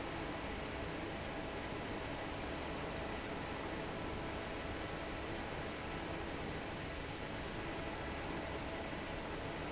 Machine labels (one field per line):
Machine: fan